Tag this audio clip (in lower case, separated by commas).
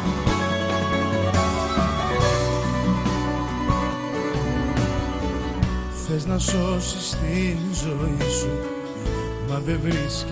background music, music